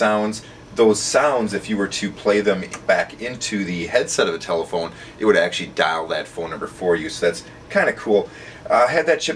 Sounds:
speech

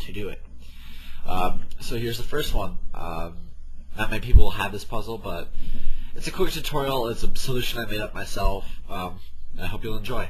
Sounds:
speech

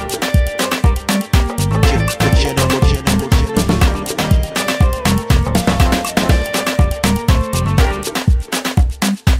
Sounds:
music of africa, music, afrobeat

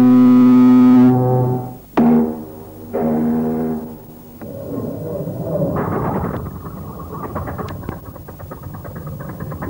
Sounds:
vehicle, ship, boat

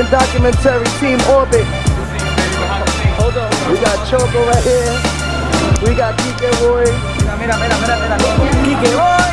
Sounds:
music, speech

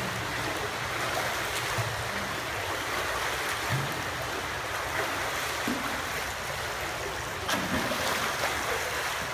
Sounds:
swimming

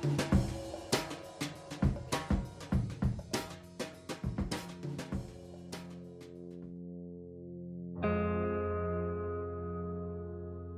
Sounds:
drum, music

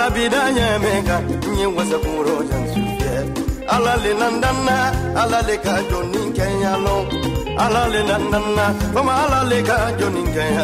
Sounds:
music, exciting music, dance music

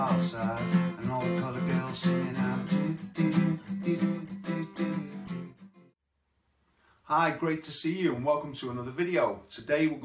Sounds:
music, speech, plucked string instrument, musical instrument, guitar

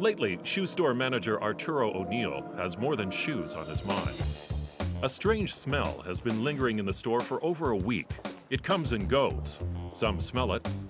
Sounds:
music, speech

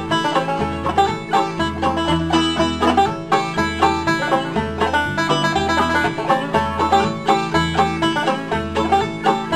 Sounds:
country, musical instrument, plucked string instrument, playing banjo, banjo, music

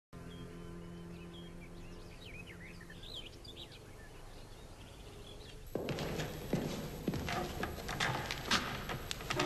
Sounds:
inside a small room, music, bird vocalization

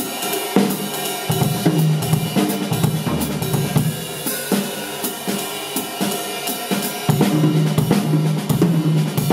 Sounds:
drum, rimshot, bass drum, snare drum, percussion, drum kit

